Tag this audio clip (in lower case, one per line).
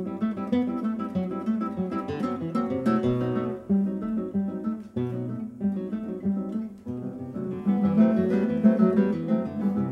acoustic guitar
guitar
strum
plucked string instrument
music
musical instrument